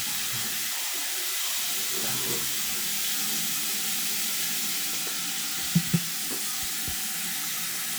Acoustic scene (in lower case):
restroom